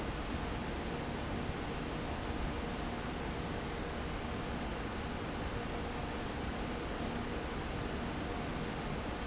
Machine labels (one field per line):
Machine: fan